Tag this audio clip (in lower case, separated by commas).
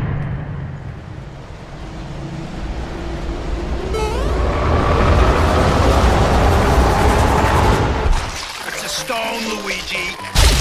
speech